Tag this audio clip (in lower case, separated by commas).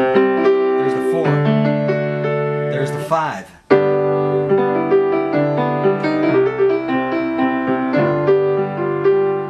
speech, music